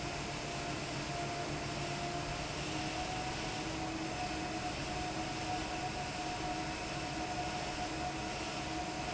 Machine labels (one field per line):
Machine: fan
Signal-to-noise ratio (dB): -6 dB